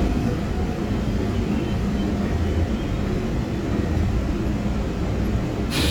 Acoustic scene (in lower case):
subway train